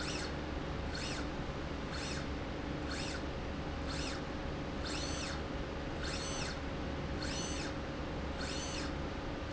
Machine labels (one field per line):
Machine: slide rail